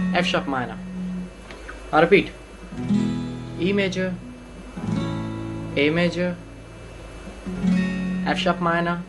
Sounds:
Electric guitar, Speech, Music, Guitar, Plucked string instrument, Strum, Musical instrument

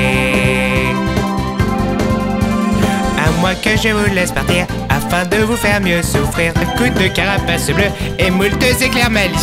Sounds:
Music

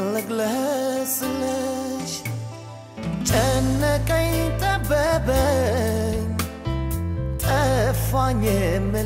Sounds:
Music

